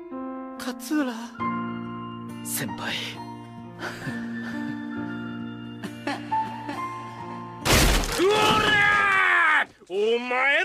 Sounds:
speech
music
man speaking
woman speaking

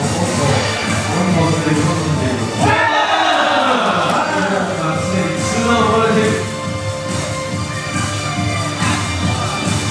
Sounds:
speech
music

